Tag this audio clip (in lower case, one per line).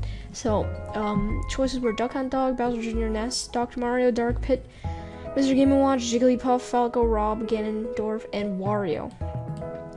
speech
music